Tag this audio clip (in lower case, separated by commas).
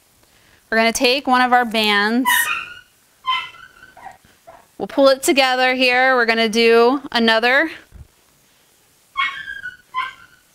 animal, speech